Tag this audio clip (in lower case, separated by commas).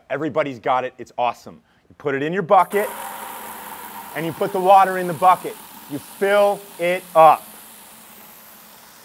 speech